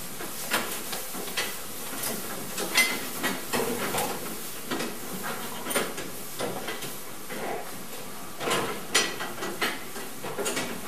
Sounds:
goat, animal

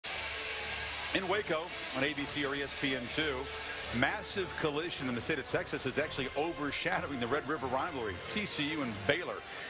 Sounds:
speech, music, outside, urban or man-made

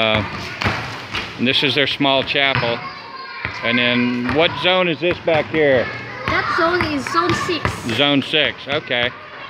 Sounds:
thump, speech

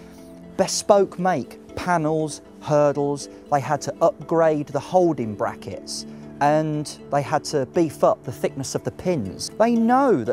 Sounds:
music, speech

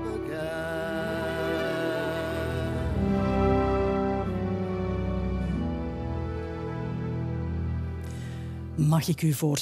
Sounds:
speech, music

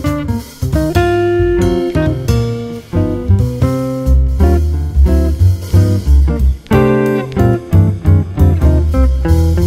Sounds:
plucked string instrument, guitar, music, musical instrument

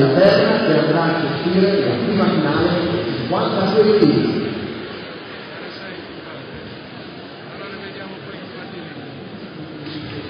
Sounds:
speech

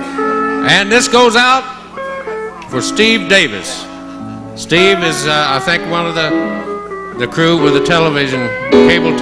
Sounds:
music, speech

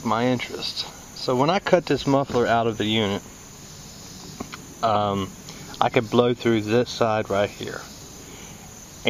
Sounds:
speech

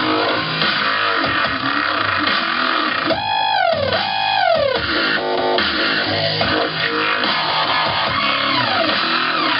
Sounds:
music

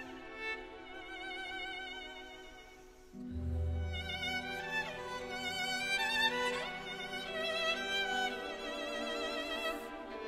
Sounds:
music, musical instrument, violin

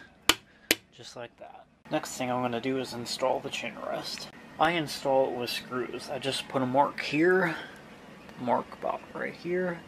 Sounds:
speech

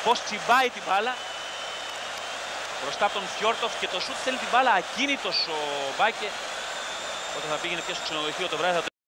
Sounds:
speech

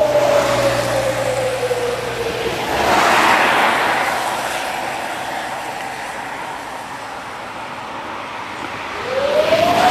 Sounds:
vehicle

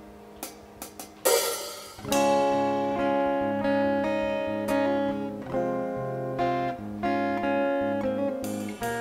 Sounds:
music, theme music

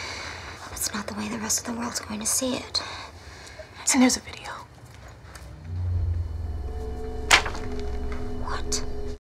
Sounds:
speech, music

